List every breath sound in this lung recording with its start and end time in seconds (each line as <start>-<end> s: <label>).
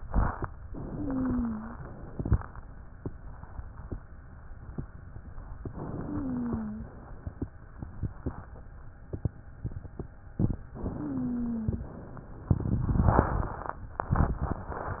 0.72-1.75 s: inhalation
0.86-1.82 s: wheeze
1.75-2.35 s: exhalation
5.64-6.75 s: inhalation
6.00-6.96 s: wheeze
6.75-7.44 s: exhalation
10.81-11.71 s: inhalation
10.97-11.94 s: wheeze
11.71-12.48 s: exhalation